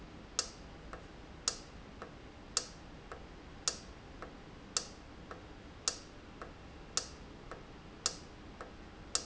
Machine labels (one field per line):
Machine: valve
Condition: normal